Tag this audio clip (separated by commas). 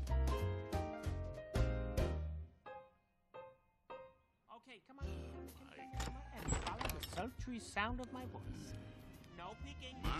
Speech, Music